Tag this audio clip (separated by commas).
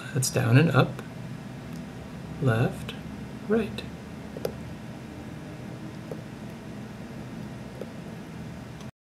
Speech